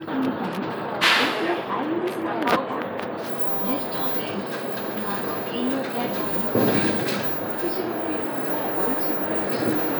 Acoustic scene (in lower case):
bus